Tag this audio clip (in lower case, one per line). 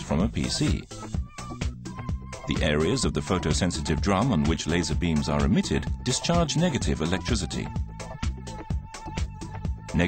speech
music